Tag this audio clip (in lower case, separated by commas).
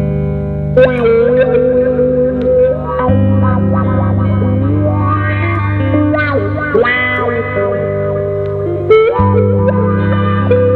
electric guitar, musical instrument, guitar, rock music, music, plucked string instrument